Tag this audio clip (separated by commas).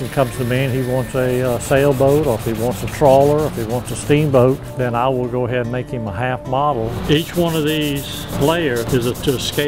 Music, Speech